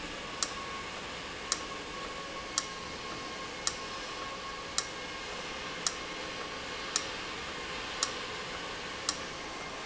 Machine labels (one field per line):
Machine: valve